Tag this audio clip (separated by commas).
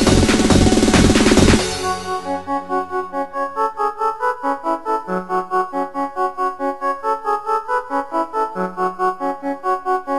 Music, Electronic music, Techno